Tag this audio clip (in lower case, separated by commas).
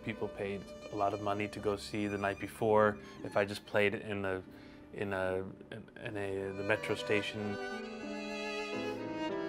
music, speech